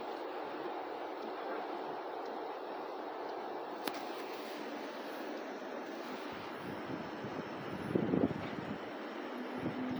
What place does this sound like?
residential area